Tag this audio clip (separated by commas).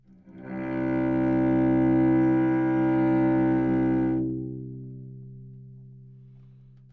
Bowed string instrument, Music, Musical instrument